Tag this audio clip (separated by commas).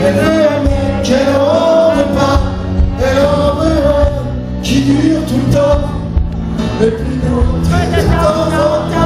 Singing, Music, Gospel music